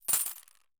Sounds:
coin (dropping), home sounds

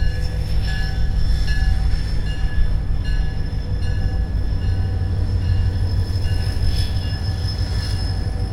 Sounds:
rail transport, train, bell, vehicle

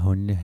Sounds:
speech, human voice

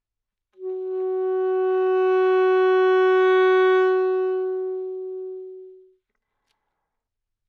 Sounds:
music, musical instrument, wind instrument

